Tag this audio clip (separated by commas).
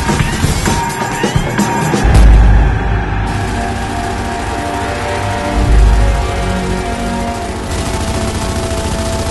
Music